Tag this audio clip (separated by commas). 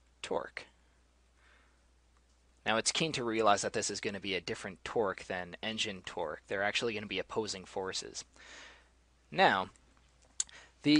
Speech